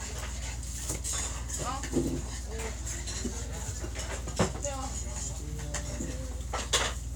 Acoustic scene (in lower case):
restaurant